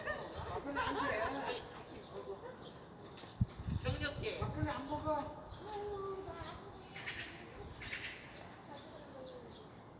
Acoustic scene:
residential area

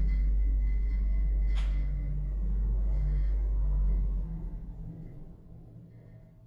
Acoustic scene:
elevator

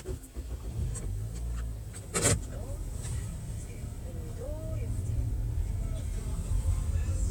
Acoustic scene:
car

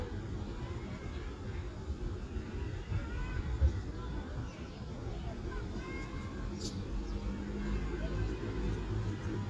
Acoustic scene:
residential area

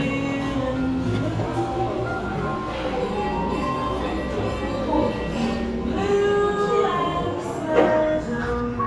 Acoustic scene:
cafe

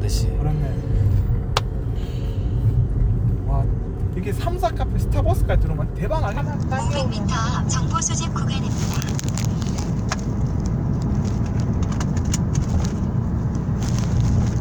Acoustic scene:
car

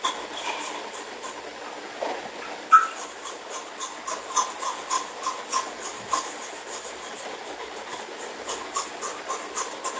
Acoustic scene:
restroom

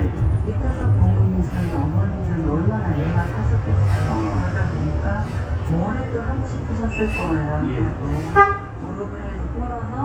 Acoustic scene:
bus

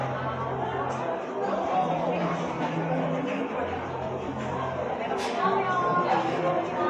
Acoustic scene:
cafe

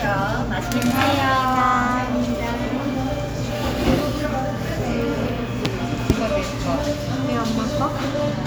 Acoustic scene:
cafe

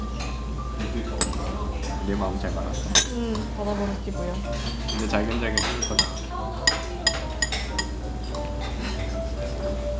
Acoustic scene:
restaurant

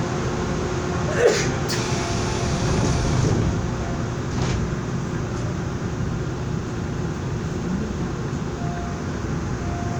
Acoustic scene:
subway train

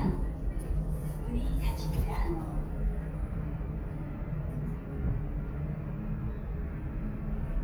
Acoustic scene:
elevator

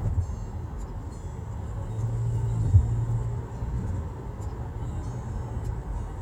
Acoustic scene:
car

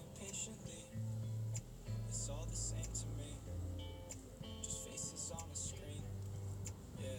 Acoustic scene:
car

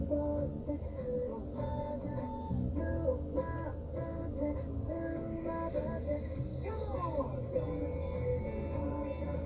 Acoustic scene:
car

